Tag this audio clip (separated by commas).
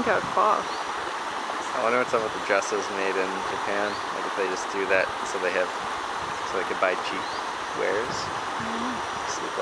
kayak, Speech